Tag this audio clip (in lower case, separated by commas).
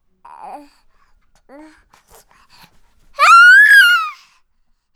sobbing, human voice